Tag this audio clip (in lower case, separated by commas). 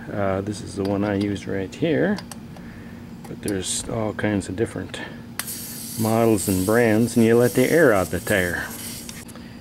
speech